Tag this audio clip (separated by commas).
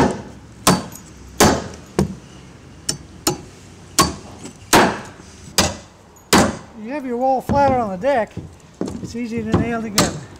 hammering nails